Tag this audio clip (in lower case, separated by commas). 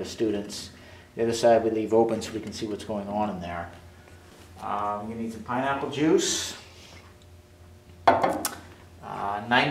speech